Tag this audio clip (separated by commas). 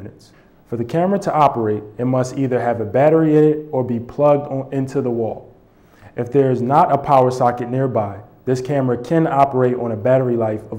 Speech